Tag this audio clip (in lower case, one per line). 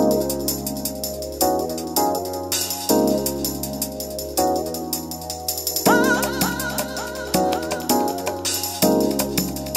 funk
music